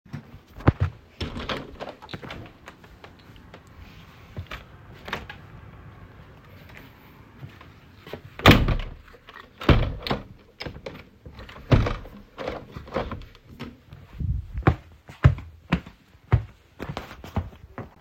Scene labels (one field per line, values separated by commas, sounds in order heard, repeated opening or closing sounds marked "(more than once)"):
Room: bedroom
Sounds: window, footsteps